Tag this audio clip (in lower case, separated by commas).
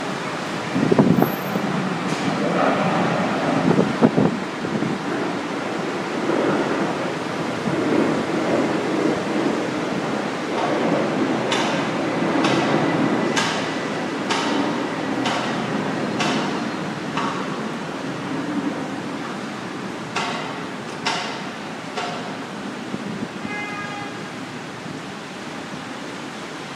rain, water